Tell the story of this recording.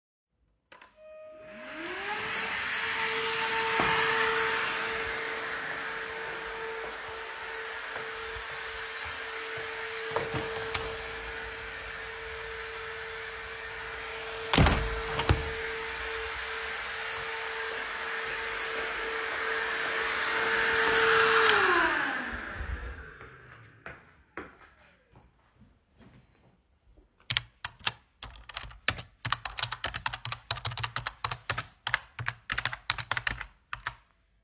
I started the vacuum cleaner. While the vacuum cleaner was on, I walked to the window. I opened and closed the window. Then I walked back to the vacuum cleaner and switched it off. I then walked to the desk and started typing on my keyboard.